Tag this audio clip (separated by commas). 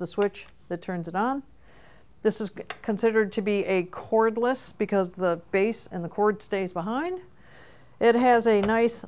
Speech